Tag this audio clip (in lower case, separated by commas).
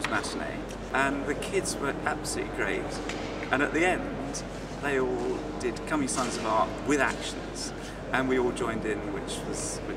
speech